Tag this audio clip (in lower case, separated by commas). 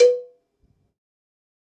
cowbell, bell